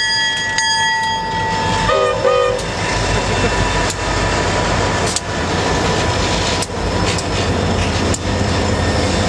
A train whistle blowing as the train pulls through the railroad